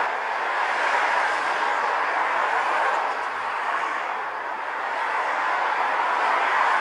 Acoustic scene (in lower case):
street